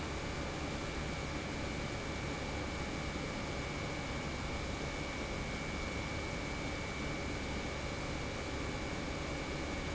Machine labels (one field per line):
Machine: pump